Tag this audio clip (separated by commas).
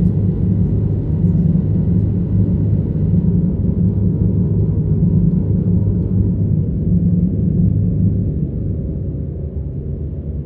door slamming